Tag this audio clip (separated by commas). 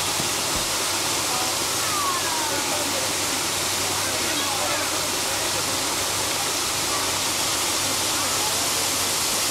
Waterfall